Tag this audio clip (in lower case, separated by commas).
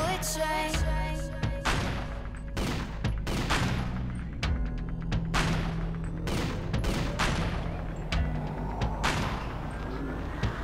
gunshot